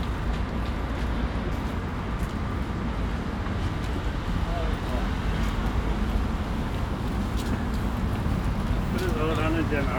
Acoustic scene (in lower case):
residential area